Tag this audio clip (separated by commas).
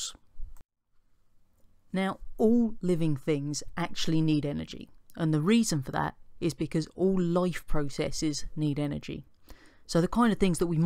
Speech